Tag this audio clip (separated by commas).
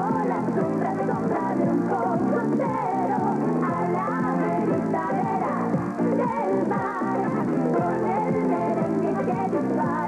Background music, Music